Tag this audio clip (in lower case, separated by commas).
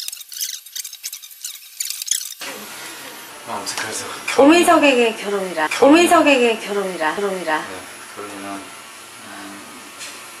inside a small room, speech